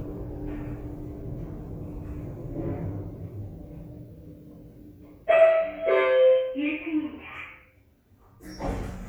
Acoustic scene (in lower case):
elevator